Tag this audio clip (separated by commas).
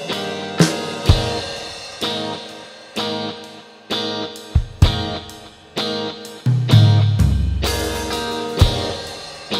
Music